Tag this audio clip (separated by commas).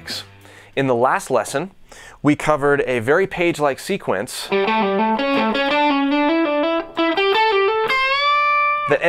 Music, Guitar, Plucked string instrument, Strum, Musical instrument, Speech